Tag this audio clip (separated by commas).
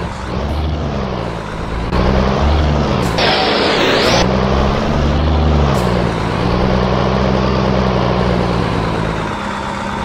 Vehicle, Truck